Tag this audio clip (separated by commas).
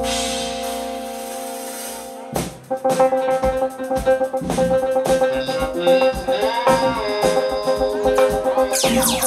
Music